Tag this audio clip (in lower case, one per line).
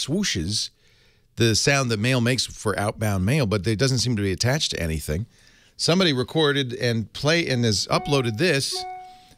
speech